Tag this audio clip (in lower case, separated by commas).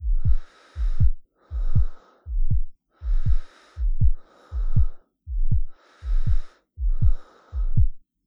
breathing, respiratory sounds